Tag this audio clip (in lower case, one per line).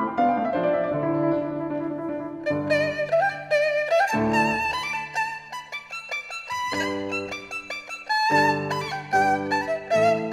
playing erhu